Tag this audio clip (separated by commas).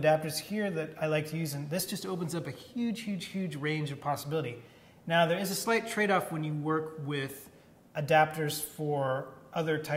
Speech